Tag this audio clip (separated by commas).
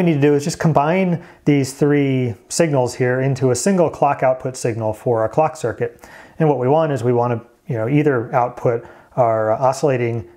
Speech